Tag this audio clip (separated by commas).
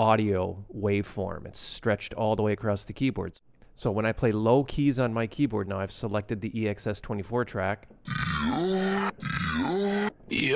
Speech